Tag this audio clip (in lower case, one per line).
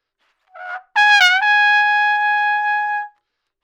musical instrument
trumpet
brass instrument
music